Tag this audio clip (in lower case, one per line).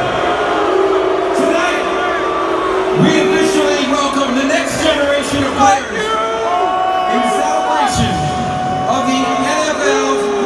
people booing